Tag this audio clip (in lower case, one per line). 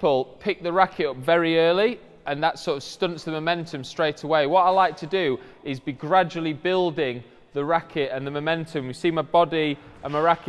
playing squash